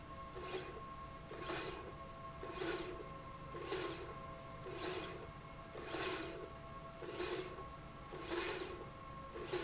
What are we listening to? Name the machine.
slide rail